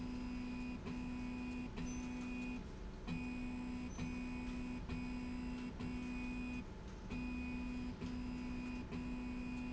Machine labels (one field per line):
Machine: slide rail